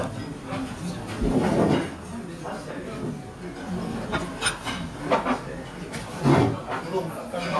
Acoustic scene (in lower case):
restaurant